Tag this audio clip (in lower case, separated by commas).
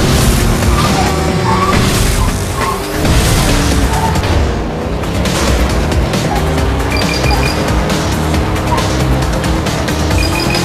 music